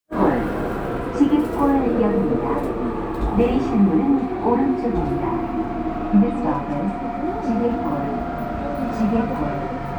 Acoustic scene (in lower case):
subway train